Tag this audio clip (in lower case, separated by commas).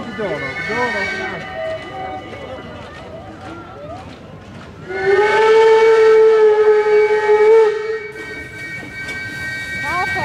speech, vehicle